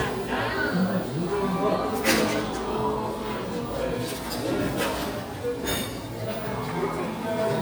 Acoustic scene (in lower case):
cafe